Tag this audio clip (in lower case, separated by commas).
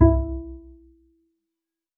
bowed string instrument, music, musical instrument